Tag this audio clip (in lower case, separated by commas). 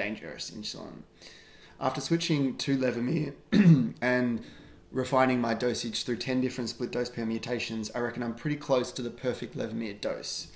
speech